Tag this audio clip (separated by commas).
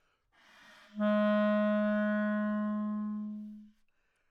Music, woodwind instrument, Musical instrument